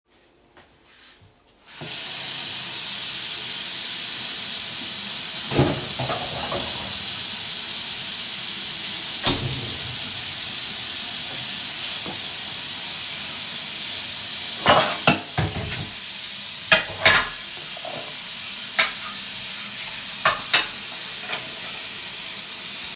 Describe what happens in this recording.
I placed the phone on the kitchen counter and started recording. I turned on the running water. I opened and closed the refrigerator door and then moved some cutlery in the sink while the water was running before stopping the recording.